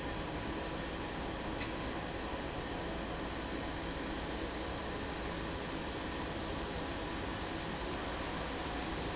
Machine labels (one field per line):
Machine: fan